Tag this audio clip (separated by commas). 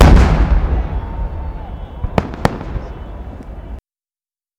Cheering, Human group actions, Fireworks, Explosion